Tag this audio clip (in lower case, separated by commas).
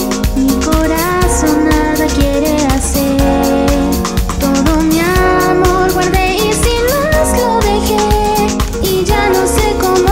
theme music, music